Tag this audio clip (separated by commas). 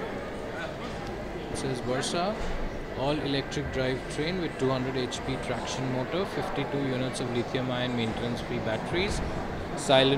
Speech